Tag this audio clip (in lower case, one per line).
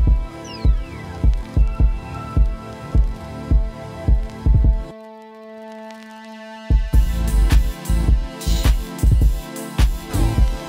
music